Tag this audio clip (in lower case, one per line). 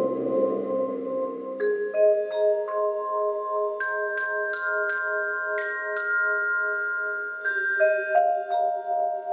music
playing vibraphone
vibraphone